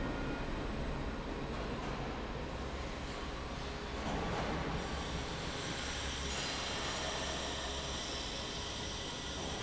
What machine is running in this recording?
fan